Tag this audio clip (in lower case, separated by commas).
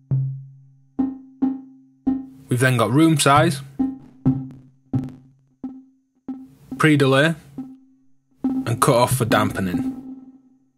music, speech